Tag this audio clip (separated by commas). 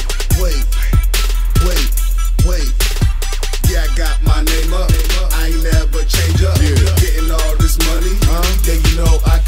Disco, Music